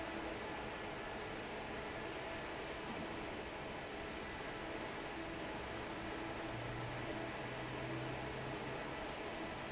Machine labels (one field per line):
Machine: fan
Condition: normal